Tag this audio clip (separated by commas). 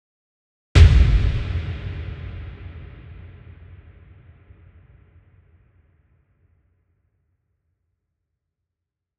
Explosion